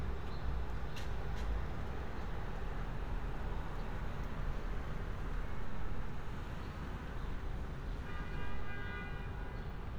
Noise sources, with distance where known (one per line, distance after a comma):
large-sounding engine
car horn, far